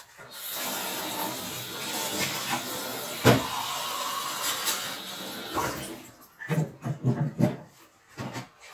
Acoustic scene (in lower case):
kitchen